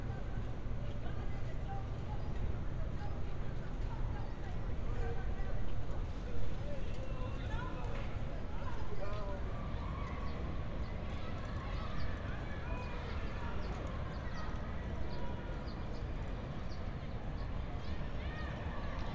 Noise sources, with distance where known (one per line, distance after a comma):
person or small group shouting, far